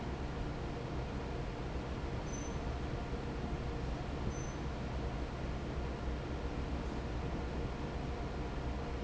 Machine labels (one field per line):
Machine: fan